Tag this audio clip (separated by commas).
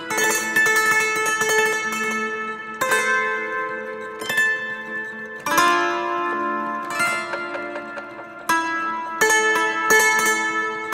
playing zither